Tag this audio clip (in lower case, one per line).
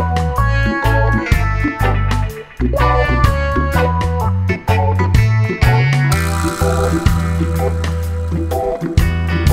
music